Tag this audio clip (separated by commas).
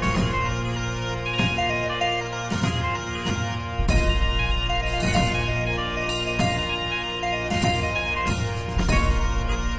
Music